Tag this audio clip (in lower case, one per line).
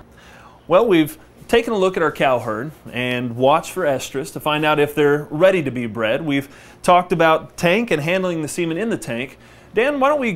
speech